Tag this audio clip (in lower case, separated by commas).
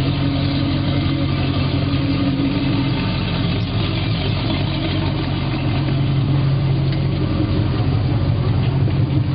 speedboat, vehicle